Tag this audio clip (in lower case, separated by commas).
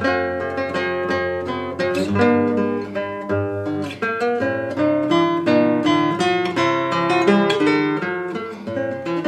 music, acoustic guitar, guitar, plucked string instrument, musical instrument